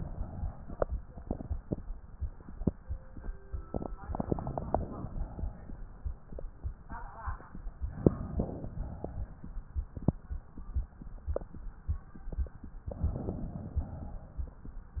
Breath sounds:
Inhalation: 4.10-5.11 s, 7.99-8.70 s
Exhalation: 5.14-6.03 s, 8.75-9.46 s, 13.76-14.53 s
Crackles: 4.10-5.11 s, 7.99-8.70 s

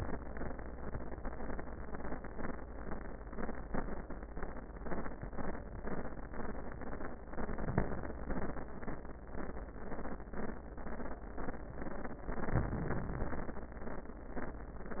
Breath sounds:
Inhalation: 12.25-13.68 s

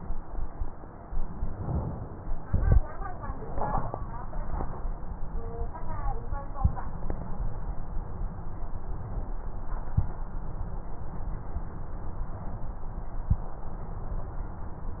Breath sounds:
Inhalation: 1.50-2.43 s
Exhalation: 2.43-2.81 s

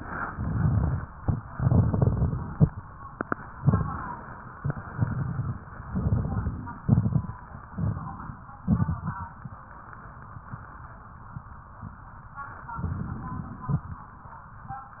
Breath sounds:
Inhalation: 0.27-1.03 s, 3.64-4.40 s, 5.86-6.83 s, 7.74-8.54 s, 12.79-13.79 s
Exhalation: 1.50-2.70 s, 4.61-5.58 s, 6.89-7.40 s, 8.63-9.22 s
Crackles: 0.27-1.03 s, 1.50-2.70 s, 3.64-4.40 s, 4.61-5.58 s, 5.86-6.83 s, 6.89-7.40 s, 7.74-8.54 s, 8.63-9.22 s, 12.79-13.79 s

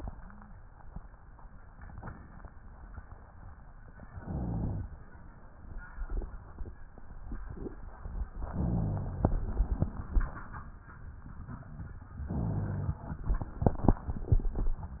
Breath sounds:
Inhalation: 4.13-4.99 s, 8.47-9.36 s, 12.28-13.06 s
Rhonchi: 4.13-4.99 s, 8.47-9.36 s, 12.28-13.06 s

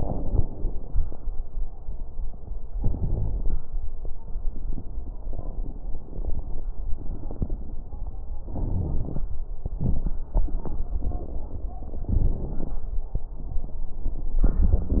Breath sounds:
Wheeze: 2.79-3.52 s, 8.70-9.22 s

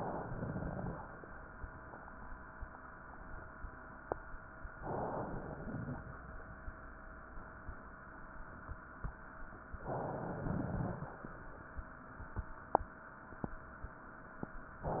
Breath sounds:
Inhalation: 4.78-5.29 s, 9.82-10.43 s
Exhalation: 0.37-0.98 s, 5.30-6.01 s, 10.44-11.22 s

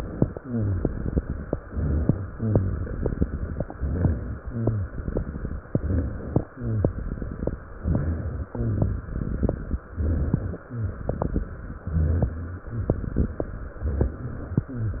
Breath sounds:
Inhalation: 1.57-2.20 s, 3.70-4.38 s, 5.66-6.45 s, 7.78-8.48 s, 9.98-10.61 s, 11.84-12.49 s
Exhalation: 0.36-1.35 s, 2.31-3.61 s, 4.50-5.62 s, 6.53-7.59 s, 8.56-9.70 s, 10.68-11.50 s, 12.69-13.44 s
Rhonchi: 0.44-0.88 s, 1.57-2.20 s, 2.31-2.94 s, 3.70-4.38 s, 4.50-4.93 s, 5.66-6.45 s, 6.53-7.08 s, 7.78-8.48 s, 8.56-9.11 s, 9.98-10.61 s, 10.68-11.16 s, 11.84-12.49 s, 12.69-13.44 s

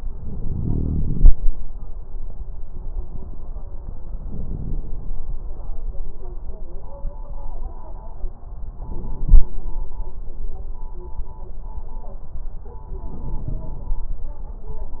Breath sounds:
Inhalation: 0.00-1.30 s, 4.20-5.22 s, 8.82-9.64 s, 13.04-14.13 s

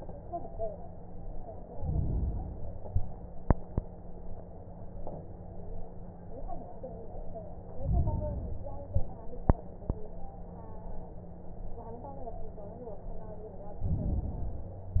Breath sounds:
Inhalation: 1.71-2.77 s, 7.71-8.68 s, 13.79-14.76 s

